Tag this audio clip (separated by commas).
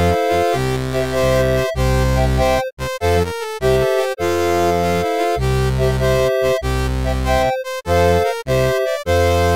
Music